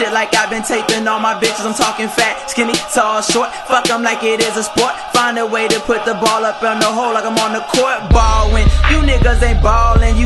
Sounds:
Music

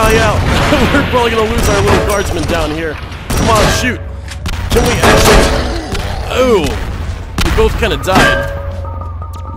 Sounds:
Fusillade

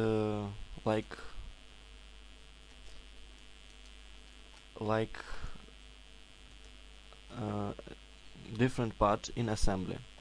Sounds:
Speech

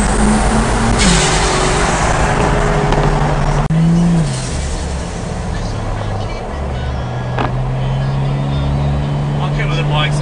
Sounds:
Speech

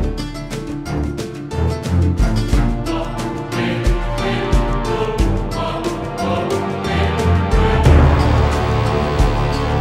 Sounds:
Music

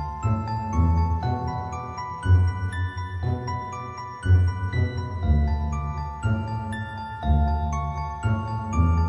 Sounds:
Music, Background music

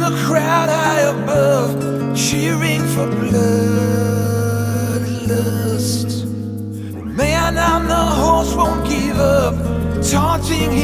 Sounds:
Music

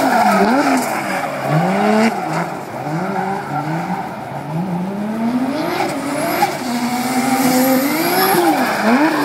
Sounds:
auto racing, Skidding, Vehicle

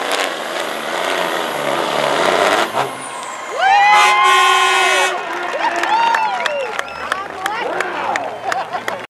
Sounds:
Speech, Truck, Air brake, Vehicle

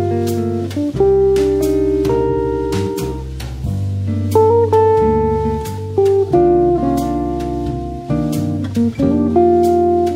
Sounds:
Acoustic guitar, Guitar, Plucked string instrument, Musical instrument, Music, Strum

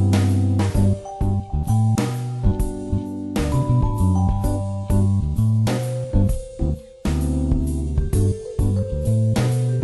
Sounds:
Music

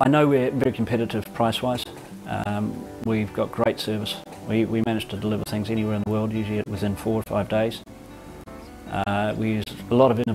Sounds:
Speech

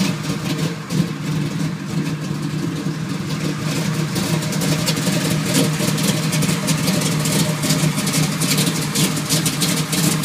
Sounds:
Heavy engine (low frequency)

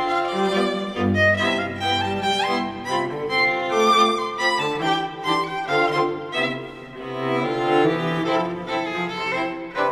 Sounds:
Music

